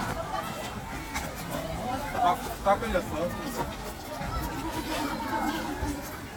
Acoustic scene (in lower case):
park